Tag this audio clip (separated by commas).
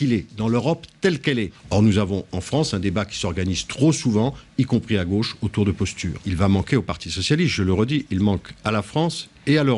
Speech